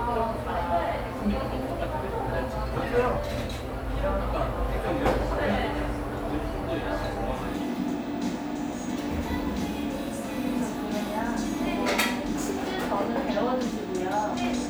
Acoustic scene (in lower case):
cafe